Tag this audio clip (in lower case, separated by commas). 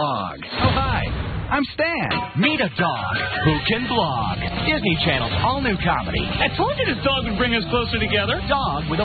speech, music